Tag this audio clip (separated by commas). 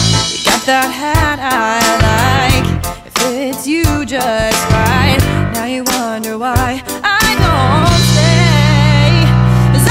Happy music, Music